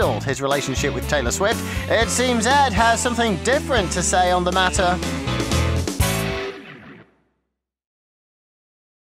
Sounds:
speech, music

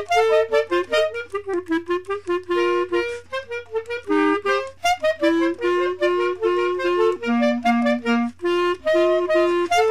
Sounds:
music, tick-tock

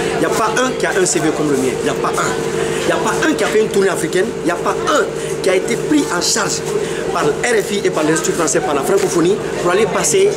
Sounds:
speech

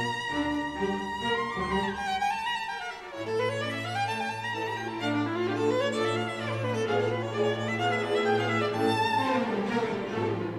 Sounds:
music, violin, musical instrument

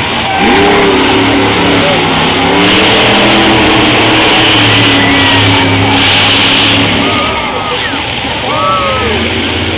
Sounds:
car, vehicle

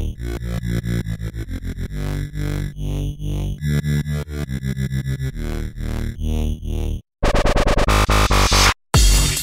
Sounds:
music, speech

